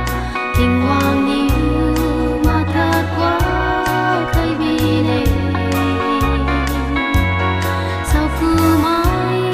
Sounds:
gospel music
singing
music
christmas music

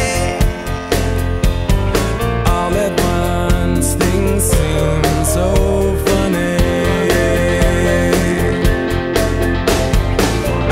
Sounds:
music

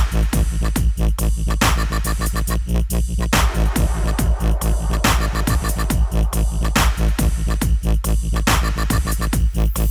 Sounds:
dubstep
music
electronic music

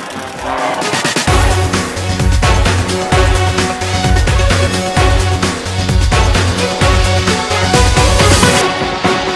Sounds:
music
soundtrack music

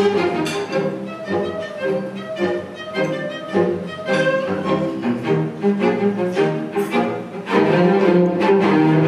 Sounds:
cello
music
musical instrument

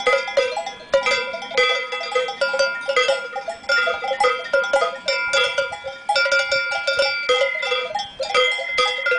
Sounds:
cattle

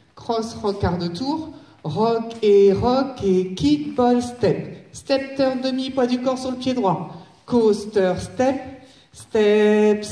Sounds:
speech

